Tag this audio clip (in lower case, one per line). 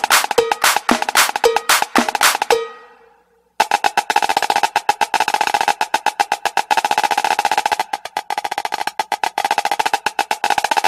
music
percussion